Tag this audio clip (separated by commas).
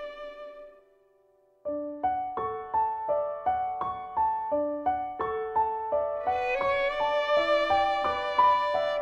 Violin, Music